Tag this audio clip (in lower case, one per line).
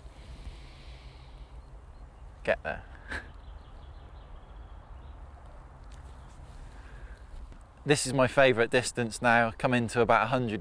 speech